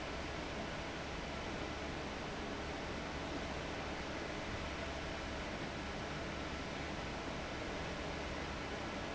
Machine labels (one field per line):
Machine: fan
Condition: abnormal